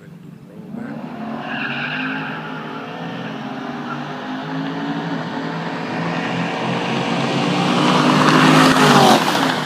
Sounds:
skidding, car, race car, vehicle

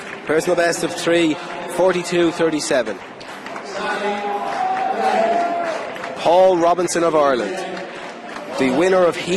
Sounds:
outside, urban or man-made, speech

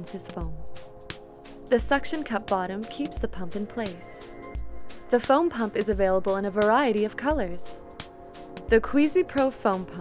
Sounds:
music, speech

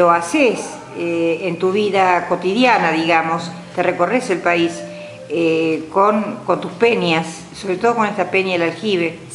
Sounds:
music, speech

